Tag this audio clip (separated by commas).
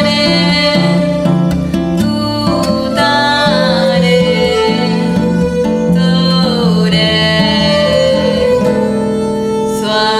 Music, Orchestra, Mantra